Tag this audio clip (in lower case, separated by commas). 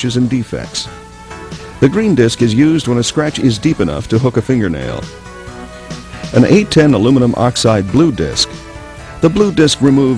music, speech